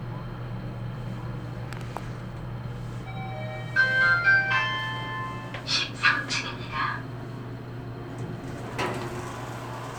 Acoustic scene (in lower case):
elevator